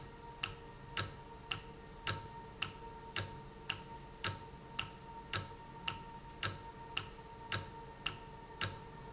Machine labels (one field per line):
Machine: valve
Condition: normal